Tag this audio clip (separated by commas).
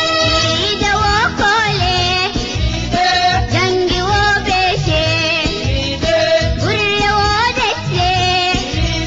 Folk music, Music